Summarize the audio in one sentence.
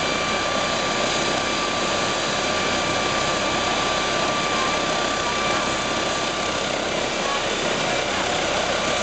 A large vehicle engine is running and some people speak in the background